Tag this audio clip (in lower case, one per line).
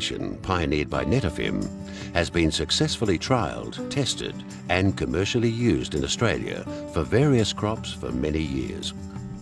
speech
music